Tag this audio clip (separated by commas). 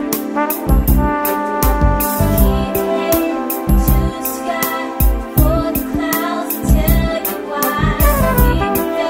Music, Rhythm and blues